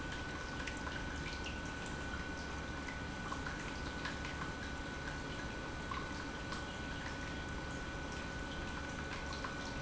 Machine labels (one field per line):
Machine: pump